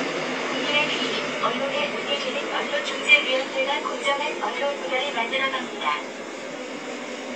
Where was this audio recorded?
on a subway train